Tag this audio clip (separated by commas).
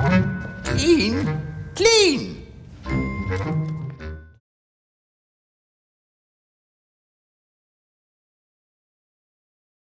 Speech, Music